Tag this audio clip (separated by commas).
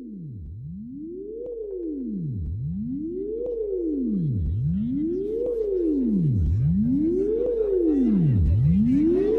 Music